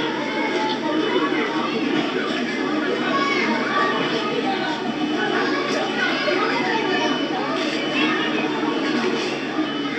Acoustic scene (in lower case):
park